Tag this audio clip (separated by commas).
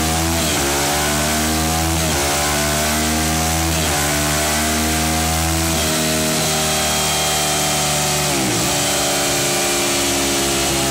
Vehicle, Motorcycle